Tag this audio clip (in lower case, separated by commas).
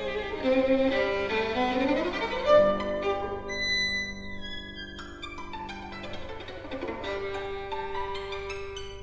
music, musical instrument, fiddle